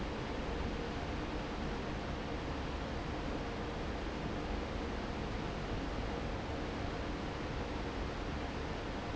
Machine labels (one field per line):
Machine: fan